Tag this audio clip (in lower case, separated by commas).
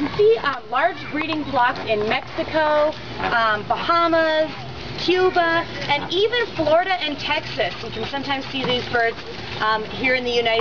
speech